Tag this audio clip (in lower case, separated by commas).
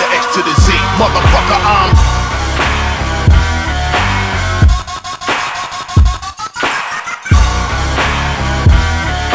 music, inside a large room or hall, singing